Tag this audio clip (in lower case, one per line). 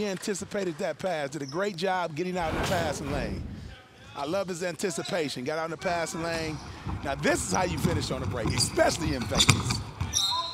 basketball bounce